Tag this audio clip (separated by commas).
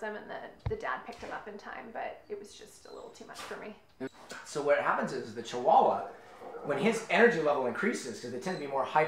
Speech